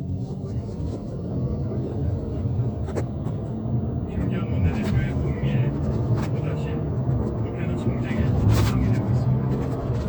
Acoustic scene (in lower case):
car